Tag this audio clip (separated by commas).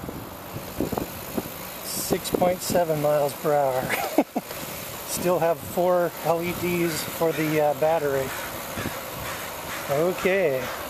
Vehicle, Speech, Bicycle